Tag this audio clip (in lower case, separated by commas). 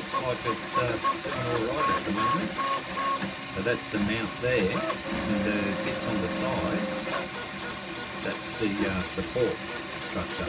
speech